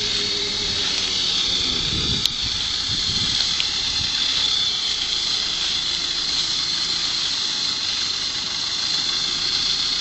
A loud hissing and spraying noise